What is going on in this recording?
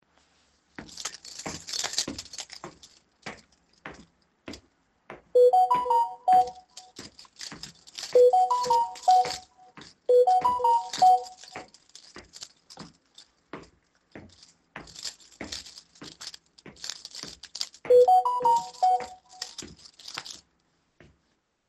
I walked downstairs with the keys in my hand. Meanwhile I got notifications on my phone